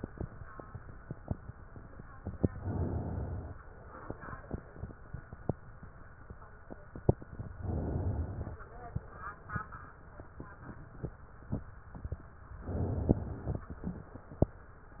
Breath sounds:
Inhalation: 2.51-3.56 s, 7.56-8.61 s, 12.62-13.66 s

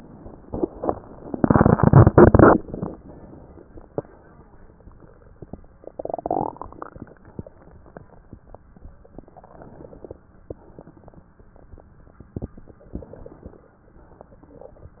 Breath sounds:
Inhalation: 9.13-10.19 s, 12.87-13.62 s
Exhalation: 7.03-8.27 s, 10.48-12.31 s, 13.66-15.00 s

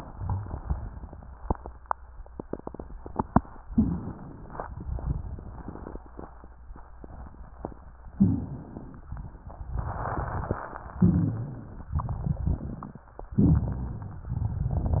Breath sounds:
Inhalation: 3.68-4.61 s, 8.16-9.03 s, 11.01-11.90 s, 13.38-14.27 s
Exhalation: 4.71-6.02 s, 11.97-13.11 s, 14.34-15.00 s
Rhonchi: 3.68-4.18 s, 8.16-8.56 s, 11.01-11.90 s, 13.38-14.27 s
Crackles: 4.71-6.02 s, 9.07-10.97 s, 11.97-13.11 s, 14.34-15.00 s

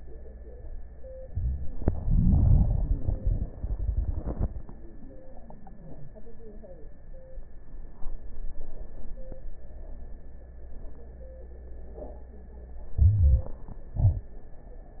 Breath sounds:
Inhalation: 12.93-13.54 s
Exhalation: 13.97-14.36 s
Crackles: 12.93-13.54 s

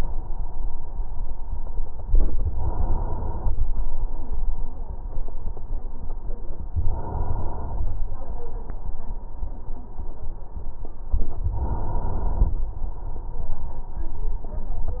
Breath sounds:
Inhalation: 2.41-3.53 s, 6.83-7.95 s, 11.42-12.54 s

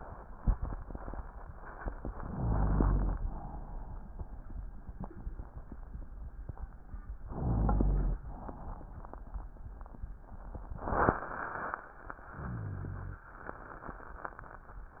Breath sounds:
Inhalation: 2.17-3.17 s, 7.26-8.21 s, 12.33-13.27 s
Exhalation: 3.19-4.65 s, 8.26-10.07 s
Rhonchi: 2.17-3.17 s, 7.26-8.21 s, 12.33-13.27 s
Crackles: 8.26-10.07 s

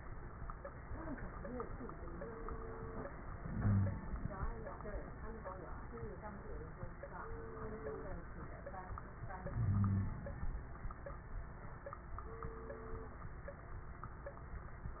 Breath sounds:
Inhalation: 3.38-4.39 s, 9.49-10.37 s
Wheeze: 3.53-3.97 s, 9.55-10.18 s

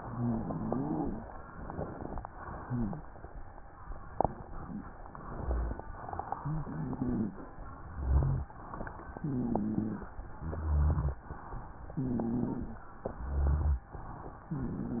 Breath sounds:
Wheeze: 0.00-1.29 s, 2.58-3.09 s, 6.42-7.40 s, 7.93-8.52 s, 9.19-10.17 s, 10.36-11.21 s, 11.99-12.84 s, 13.13-13.93 s, 14.52-15.00 s

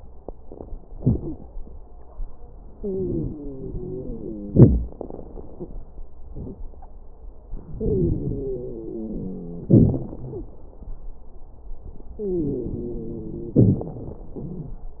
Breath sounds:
Inhalation: 2.77-4.51 s, 7.71-9.71 s, 12.18-13.57 s
Exhalation: 4.53-4.95 s, 9.72-10.52 s, 13.60-15.00 s
Wheeze: 0.93-1.37 s, 2.77-4.51 s, 7.71-9.71 s, 10.27-10.54 s, 12.18-13.57 s
Crackles: 4.53-4.95 s, 13.60-15.00 s

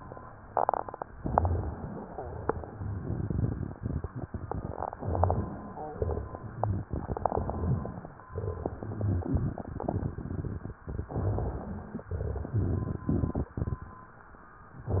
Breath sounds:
Inhalation: 1.18-2.28 s, 4.99-5.86 s, 7.25-8.14 s, 11.14-12.03 s
Exhalation: 2.49-4.82 s, 6.00-7.17 s, 8.39-10.72 s, 12.12-13.95 s
Crackles: 2.49-4.82 s, 6.00-7.17 s, 8.39-10.72 s, 12.12-13.95 s

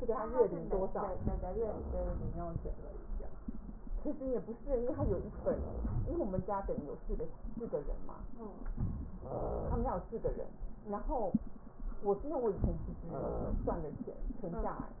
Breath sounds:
No breath sounds were labelled in this clip.

